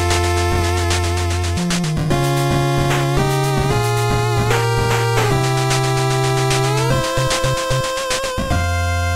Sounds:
Music

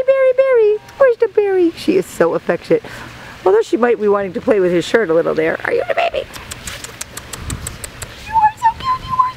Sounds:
Speech

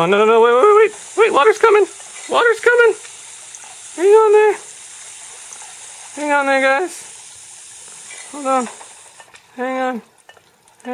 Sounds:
Speech

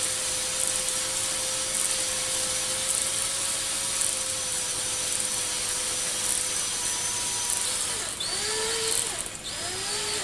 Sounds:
Drill

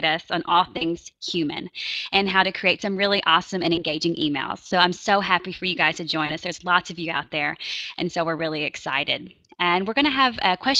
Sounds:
Speech

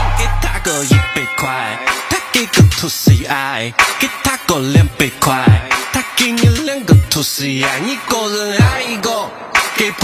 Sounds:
Music

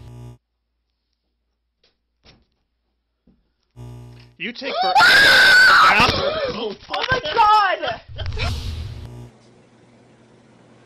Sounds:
people screaming

